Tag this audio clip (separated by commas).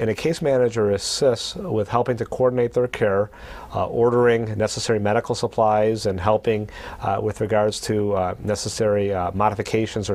Speech